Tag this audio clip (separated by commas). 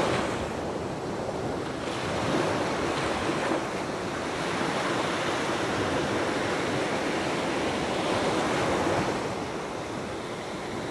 Wind, Ocean, ocean burbling, Waves